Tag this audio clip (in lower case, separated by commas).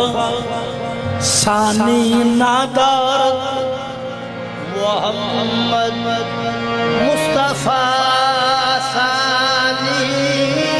music